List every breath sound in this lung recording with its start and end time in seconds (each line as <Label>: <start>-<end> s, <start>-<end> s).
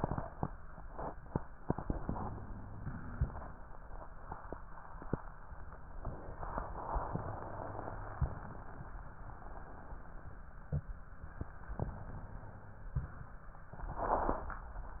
Inhalation: 2.15-3.13 s, 7.14-8.18 s, 11.78-12.96 s
Exhalation: 3.13-3.62 s, 8.18-8.88 s, 12.96-13.70 s